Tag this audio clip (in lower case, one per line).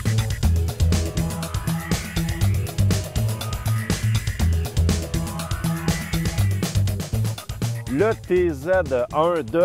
speech
music